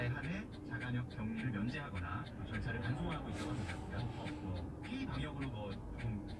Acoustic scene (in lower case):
car